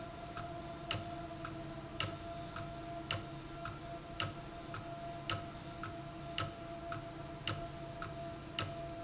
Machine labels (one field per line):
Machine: valve